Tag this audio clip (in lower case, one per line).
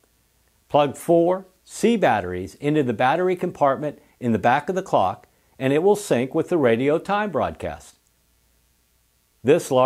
speech